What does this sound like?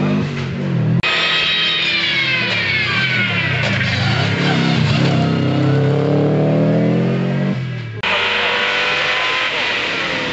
A motor vehicle engine is running, a decelerating buzzing occurs, mechanical whines occur, and the motor vehicle engine accelerates